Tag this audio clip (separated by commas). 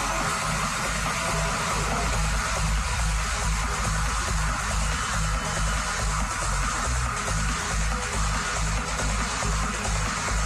Music, Electronic music